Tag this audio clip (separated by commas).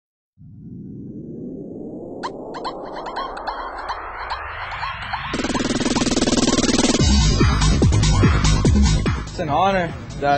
outside, urban or man-made, Speech, Music